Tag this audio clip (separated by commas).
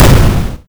Explosion